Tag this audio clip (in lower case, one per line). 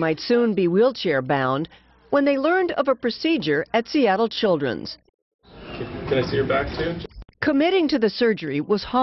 speech